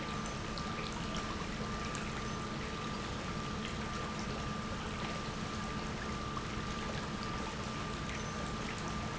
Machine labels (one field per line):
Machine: pump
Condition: normal